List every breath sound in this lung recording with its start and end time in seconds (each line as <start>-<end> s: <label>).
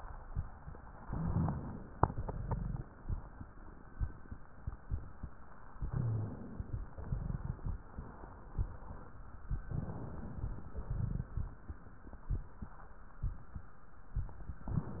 1.09-1.90 s: inhalation
1.89-3.50 s: exhalation
5.84-6.88 s: inhalation
5.89-6.31 s: wheeze
6.87-9.14 s: exhalation
9.63-10.70 s: inhalation
10.74-12.73 s: exhalation